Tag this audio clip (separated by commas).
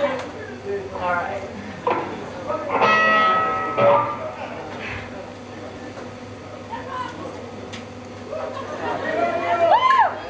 Musical instrument, Music, Speech